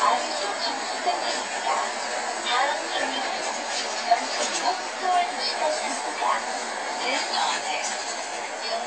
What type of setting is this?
bus